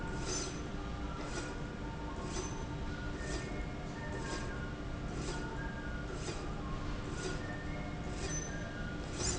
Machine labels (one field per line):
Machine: slide rail